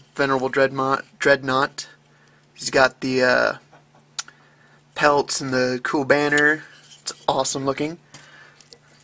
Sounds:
speech

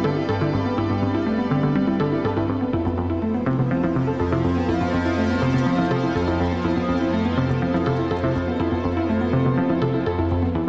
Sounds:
music

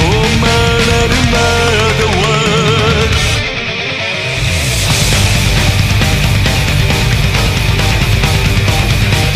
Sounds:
music, singing

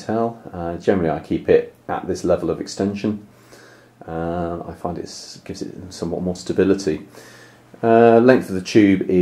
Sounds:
speech

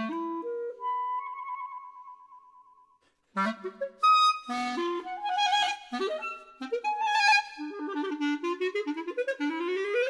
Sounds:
clarinet, music

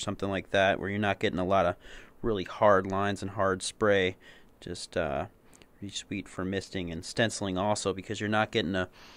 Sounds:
speech

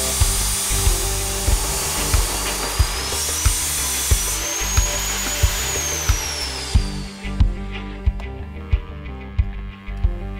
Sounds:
music, power tool, tools

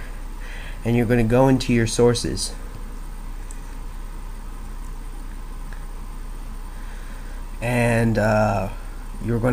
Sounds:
speech

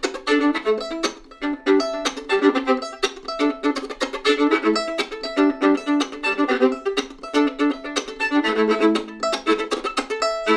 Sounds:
fiddle, bowed string instrument

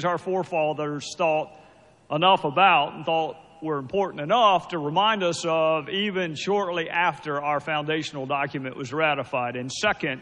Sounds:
speech, narration, male speech

